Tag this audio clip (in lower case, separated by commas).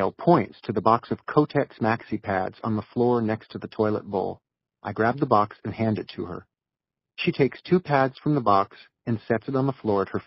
speech, speech synthesizer